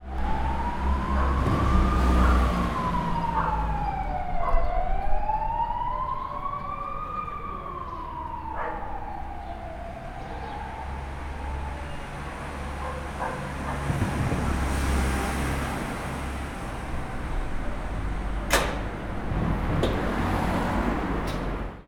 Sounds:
vehicle
animal
dog
motor vehicle (road)
motorcycle
domestic animals

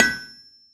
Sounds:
tools

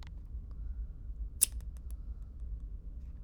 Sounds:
domestic sounds
scissors

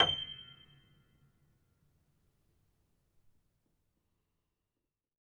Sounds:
keyboard (musical)
musical instrument
piano
music

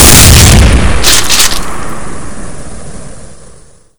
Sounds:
explosion
gunshot

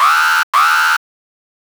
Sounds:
alarm

